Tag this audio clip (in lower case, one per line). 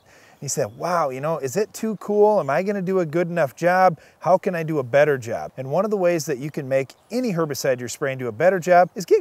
speech